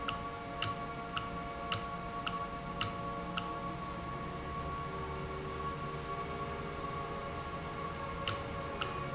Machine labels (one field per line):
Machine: valve